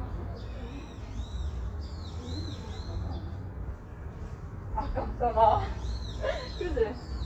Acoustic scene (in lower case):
park